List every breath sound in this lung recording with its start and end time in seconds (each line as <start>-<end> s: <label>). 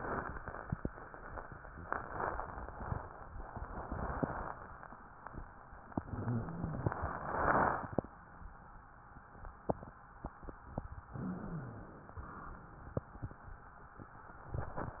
5.98-6.91 s: inhalation
5.98-6.91 s: wheeze
11.10-12.03 s: inhalation
11.10-12.03 s: wheeze
12.13-13.05 s: exhalation